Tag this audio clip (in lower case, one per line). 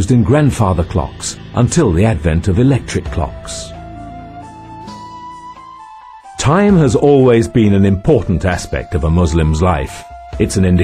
music
speech